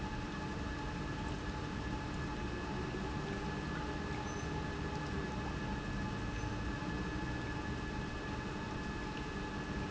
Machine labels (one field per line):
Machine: pump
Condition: normal